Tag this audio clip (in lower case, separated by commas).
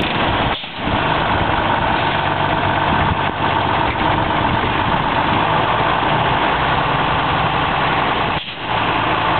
bus, outside, rural or natural, vehicle, idling, driving buses